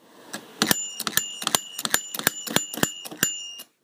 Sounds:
bell

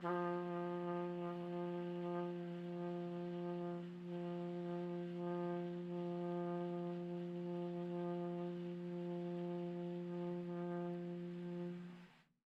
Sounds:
music
brass instrument
trumpet
musical instrument

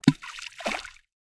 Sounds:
water
splash
liquid

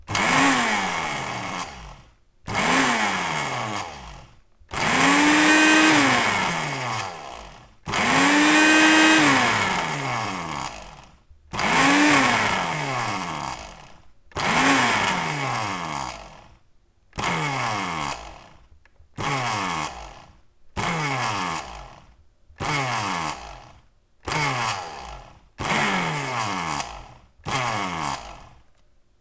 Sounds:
domestic sounds

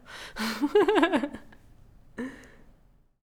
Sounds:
human voice
laughter

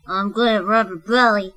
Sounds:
human voice
speech

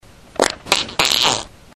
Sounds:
fart

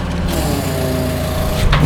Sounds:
engine
mechanisms

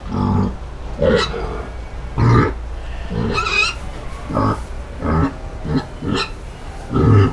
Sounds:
animal
livestock

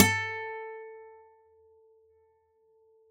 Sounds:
musical instrument
acoustic guitar
plucked string instrument
music
guitar

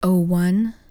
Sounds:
female speech
speech
human voice

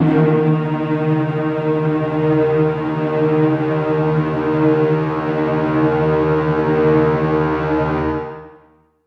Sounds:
music
musical instrument

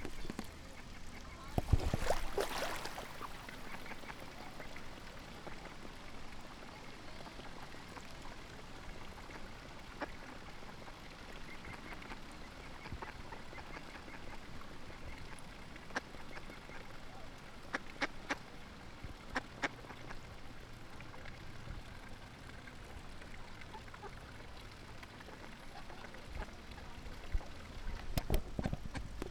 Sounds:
animal
fowl
livestock
wild animals
bird

